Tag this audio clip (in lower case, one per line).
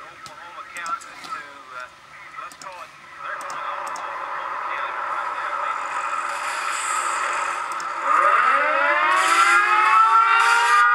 speech
siren